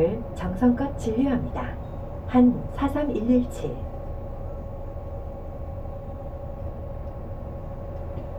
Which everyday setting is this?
bus